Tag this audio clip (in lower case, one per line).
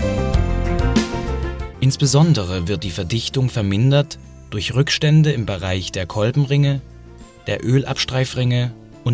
speech
music